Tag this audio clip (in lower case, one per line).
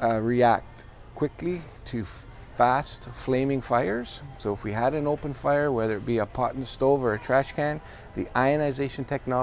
speech